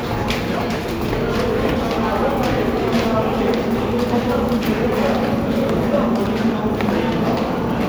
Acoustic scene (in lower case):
subway station